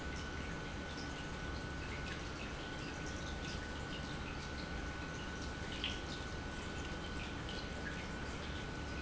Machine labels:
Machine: pump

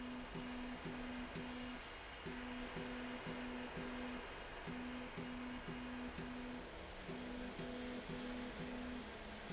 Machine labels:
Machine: slide rail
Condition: normal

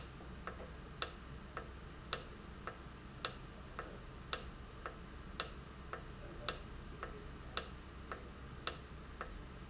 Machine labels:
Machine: valve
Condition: normal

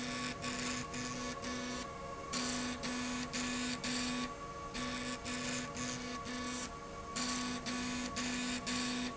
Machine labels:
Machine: slide rail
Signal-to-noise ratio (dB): 0 dB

